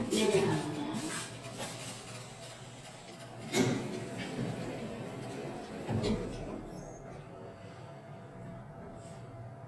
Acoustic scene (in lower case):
elevator